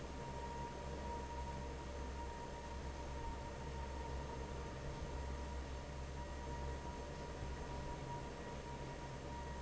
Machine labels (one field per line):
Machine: fan